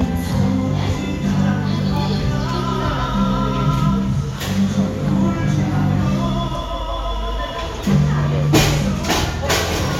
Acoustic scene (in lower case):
cafe